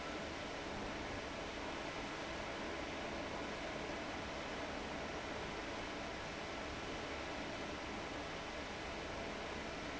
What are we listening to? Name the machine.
fan